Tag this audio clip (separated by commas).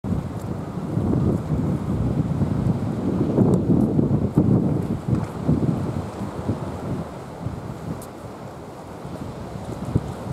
Wind noise (microphone), Wind